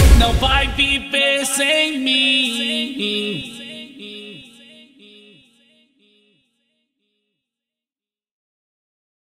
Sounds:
Rhythm and blues, Music

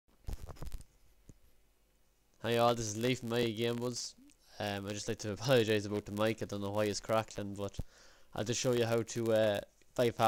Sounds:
Speech

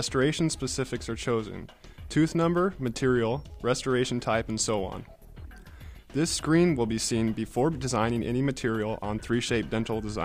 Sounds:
Speech, Music

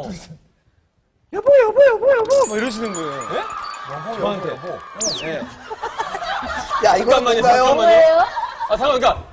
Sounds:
Speech

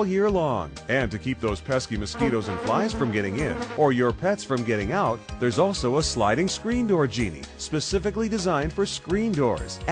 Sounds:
Music, Speech

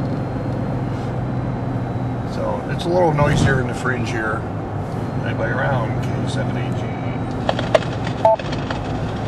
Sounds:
Car, Vehicle, Speech, Radio

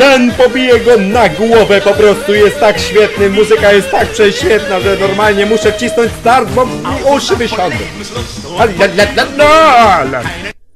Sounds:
Music, Speech

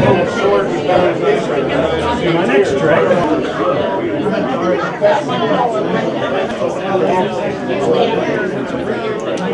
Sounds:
Speech

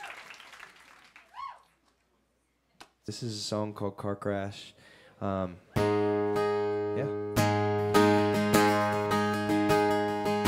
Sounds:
Music, Speech

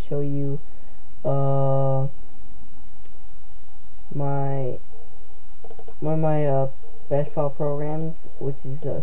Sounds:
Speech

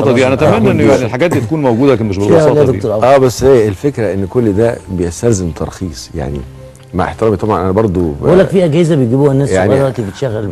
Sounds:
Speech

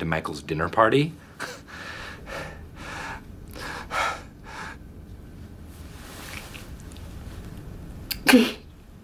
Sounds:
Speech

